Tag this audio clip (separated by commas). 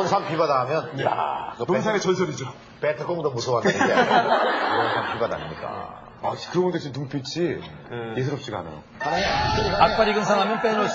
Speech